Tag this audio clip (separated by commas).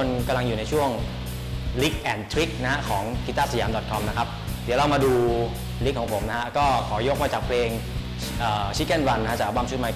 Speech, Music